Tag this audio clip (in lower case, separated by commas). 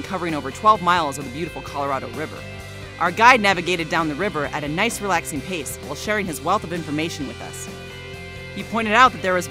speech, music